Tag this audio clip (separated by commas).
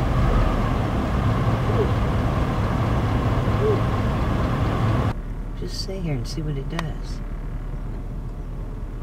Speech, Animal